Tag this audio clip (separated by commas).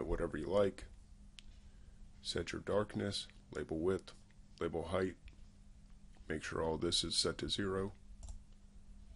Speech